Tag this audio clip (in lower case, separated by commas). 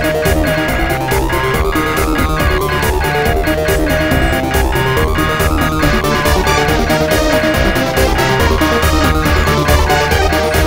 video game music, music